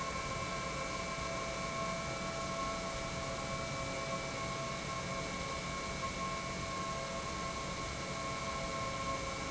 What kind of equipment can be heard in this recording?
pump